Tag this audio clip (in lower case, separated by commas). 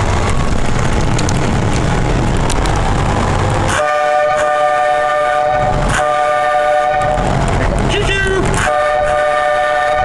vehicle, train